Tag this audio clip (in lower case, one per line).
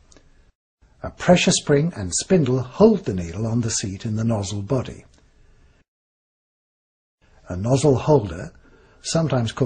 speech